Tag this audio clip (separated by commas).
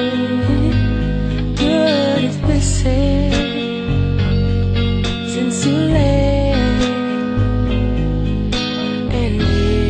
Music